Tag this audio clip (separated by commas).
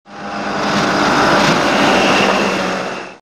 Vehicle, speedboat